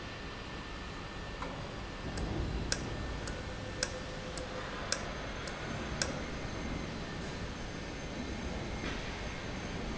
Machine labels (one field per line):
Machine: valve